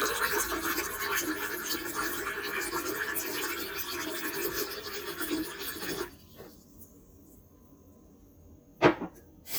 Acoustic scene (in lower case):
kitchen